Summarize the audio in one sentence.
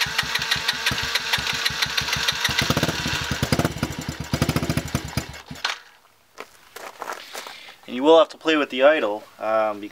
A vehicle engine is started